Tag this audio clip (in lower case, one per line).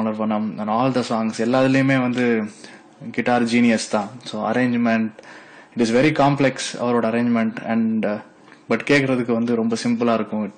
speech